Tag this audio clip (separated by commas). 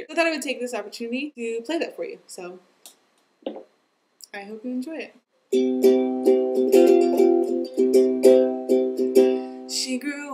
Country, Music, Ukulele, inside a small room, Speech